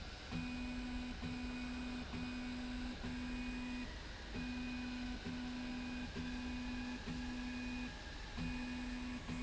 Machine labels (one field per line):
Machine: slide rail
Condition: normal